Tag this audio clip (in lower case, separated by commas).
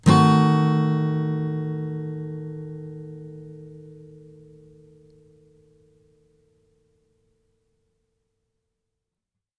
acoustic guitar, music, strum, plucked string instrument, musical instrument, guitar